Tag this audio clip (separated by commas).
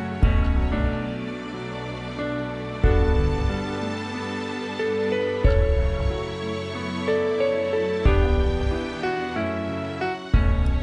Music